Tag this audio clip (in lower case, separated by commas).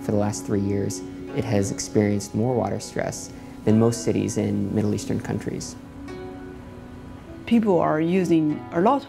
speech, music